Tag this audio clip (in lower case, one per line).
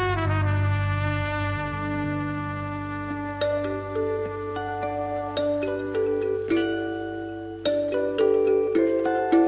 xylophone
mallet percussion
glockenspiel